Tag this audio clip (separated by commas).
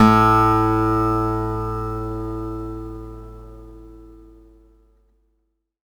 Musical instrument, Acoustic guitar, Plucked string instrument, Guitar, Music